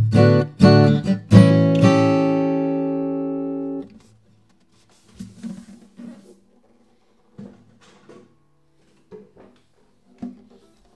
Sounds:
Music

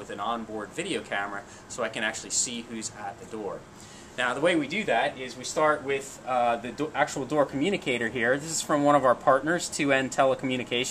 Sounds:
Speech

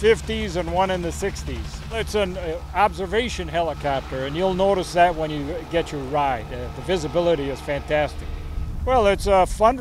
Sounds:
Speech

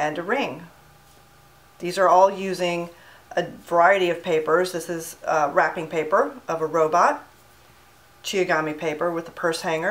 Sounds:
Speech

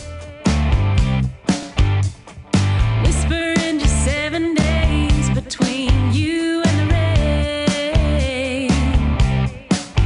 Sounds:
Music

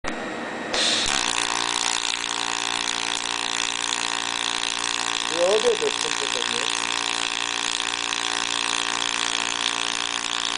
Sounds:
Speech

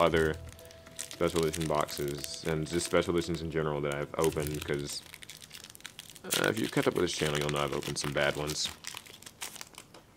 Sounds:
inside a small room, Speech

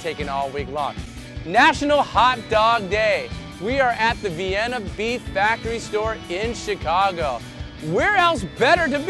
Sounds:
Speech, Music

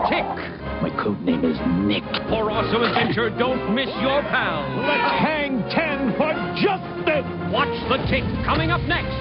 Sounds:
Speech, Music

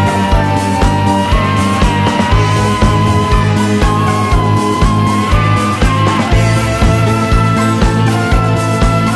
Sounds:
Progressive rock

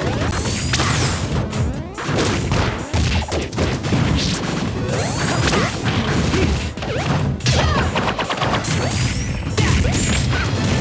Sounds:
Smash, Music

